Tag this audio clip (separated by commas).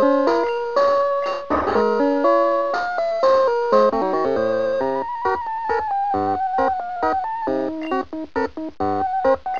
Music